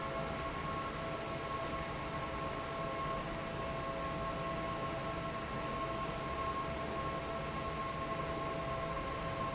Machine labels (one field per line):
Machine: fan